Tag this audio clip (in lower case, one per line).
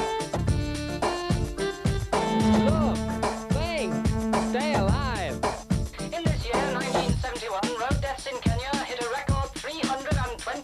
music
speech